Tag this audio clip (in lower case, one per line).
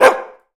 animal
dog
bark
domestic animals